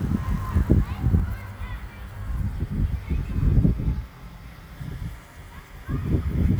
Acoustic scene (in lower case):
residential area